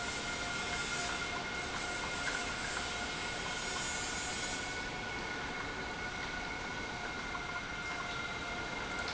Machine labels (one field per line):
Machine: pump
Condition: normal